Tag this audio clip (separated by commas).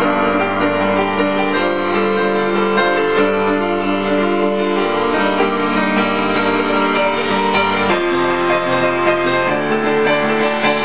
Music